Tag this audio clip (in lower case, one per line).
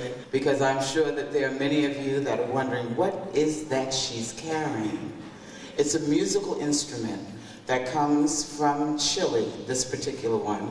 speech